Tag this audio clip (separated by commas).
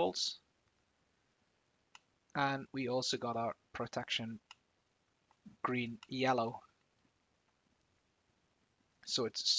Speech